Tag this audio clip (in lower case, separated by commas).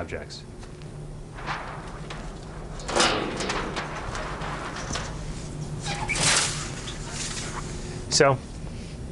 speech